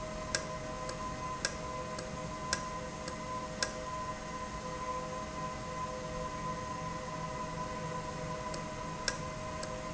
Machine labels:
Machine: valve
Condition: normal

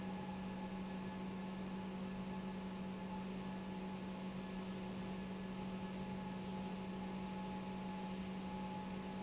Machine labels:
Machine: pump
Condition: normal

